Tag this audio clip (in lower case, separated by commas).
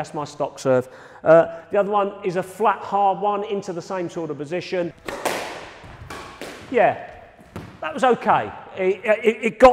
playing squash